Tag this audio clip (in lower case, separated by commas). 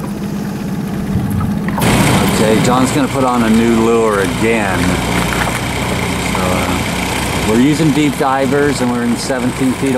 speech